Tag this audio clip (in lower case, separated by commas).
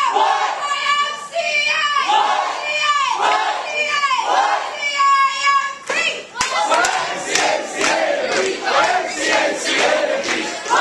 crowd, speech, people crowd